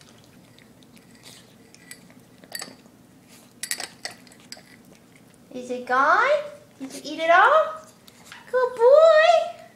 A woman is talking with the clanking sounds